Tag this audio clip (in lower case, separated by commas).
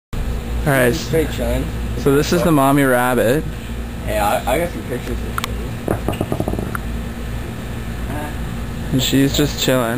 outside, rural or natural, speech